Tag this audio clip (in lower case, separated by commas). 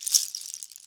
percussion, rattle, music, musical instrument, rattle (instrument)